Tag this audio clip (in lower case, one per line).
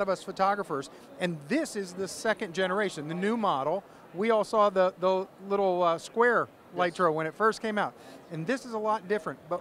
speech